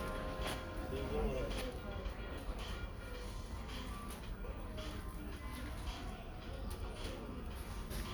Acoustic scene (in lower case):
crowded indoor space